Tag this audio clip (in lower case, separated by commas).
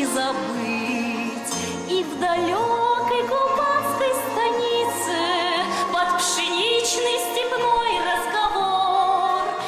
music, singing